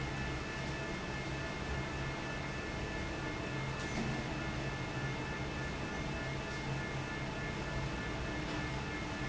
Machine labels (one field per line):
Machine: fan